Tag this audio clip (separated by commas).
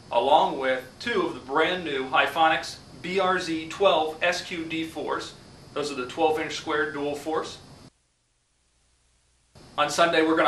Speech